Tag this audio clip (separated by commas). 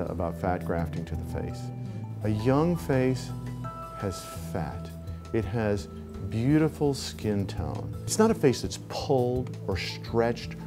Speech, Music